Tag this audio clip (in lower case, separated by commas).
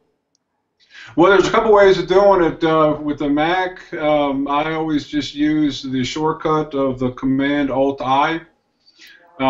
speech